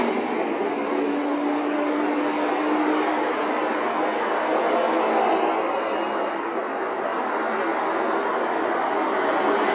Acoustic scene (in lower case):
street